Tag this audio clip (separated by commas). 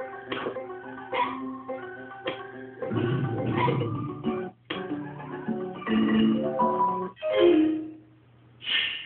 Mallet percussion, Glockenspiel, Marimba